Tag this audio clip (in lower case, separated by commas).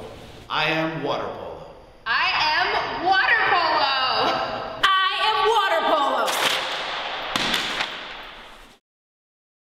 speech